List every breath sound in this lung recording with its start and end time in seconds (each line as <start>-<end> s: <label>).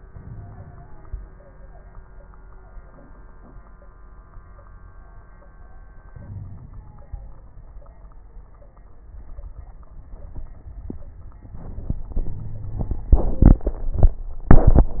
0.04-1.16 s: inhalation
0.18-0.76 s: wheeze
6.09-7.12 s: inhalation
6.26-6.62 s: wheeze
12.27-13.04 s: wheeze